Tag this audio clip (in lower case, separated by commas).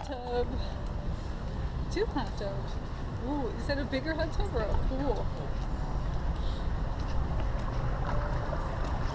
vehicle, ship